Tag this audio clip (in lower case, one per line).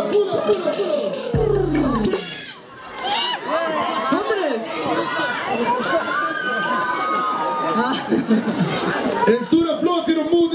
music
speech